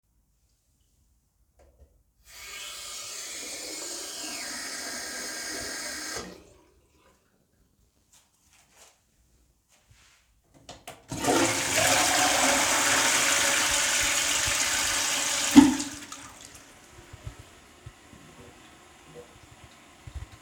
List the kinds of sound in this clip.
running water, toilet flushing